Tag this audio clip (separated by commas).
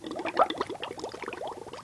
Liquid